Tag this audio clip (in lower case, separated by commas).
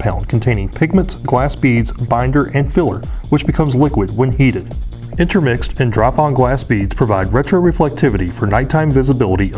speech, music